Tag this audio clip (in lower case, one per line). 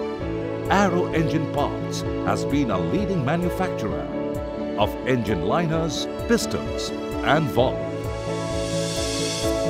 speech
music